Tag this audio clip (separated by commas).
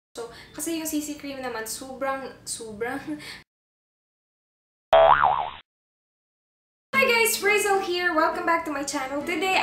Speech, Music, inside a small room